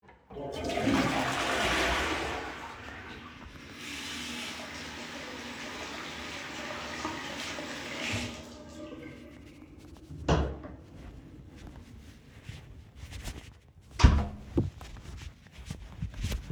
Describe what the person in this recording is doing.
I flushed the toilet, washed my hands, opened the door, walked through it and closed the door